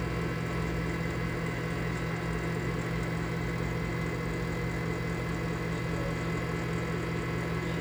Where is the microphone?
in a kitchen